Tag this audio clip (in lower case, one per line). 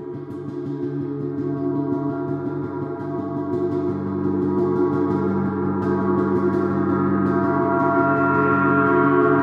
gong